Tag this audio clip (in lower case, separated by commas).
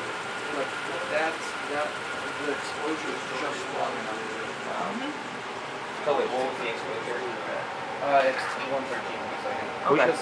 speech